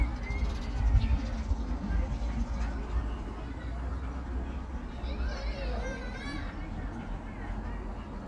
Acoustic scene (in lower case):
park